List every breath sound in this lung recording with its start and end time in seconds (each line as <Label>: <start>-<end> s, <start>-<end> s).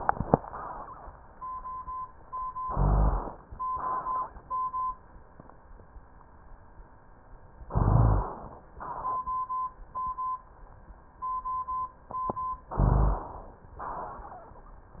Inhalation: 2.60-3.38 s, 7.68-8.65 s, 12.71-13.66 s
Exhalation: 3.61-4.38 s, 8.71-9.20 s, 13.81-14.76 s
Rhonchi: 2.60-3.38 s, 7.68-8.31 s, 12.71-13.21 s